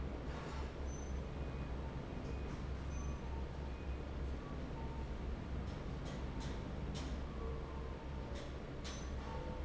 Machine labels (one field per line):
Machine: fan